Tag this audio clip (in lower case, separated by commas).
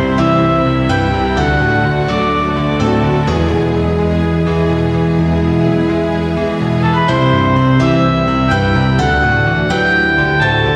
background music, music